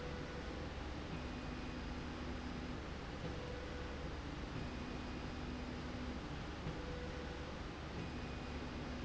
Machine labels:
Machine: slide rail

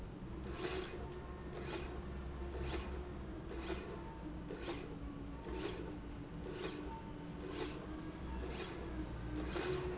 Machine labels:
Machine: slide rail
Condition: normal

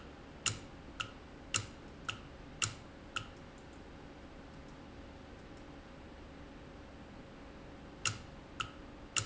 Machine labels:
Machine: valve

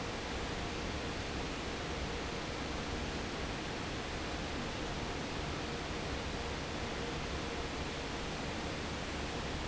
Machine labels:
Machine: fan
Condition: normal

